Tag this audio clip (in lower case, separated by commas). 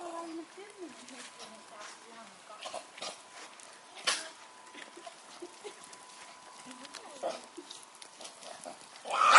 pets, speech, dog, animal